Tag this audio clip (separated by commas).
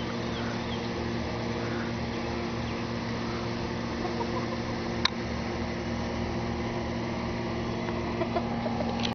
Domestic animals